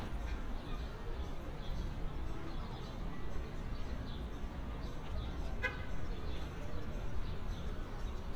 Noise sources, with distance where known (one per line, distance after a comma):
background noise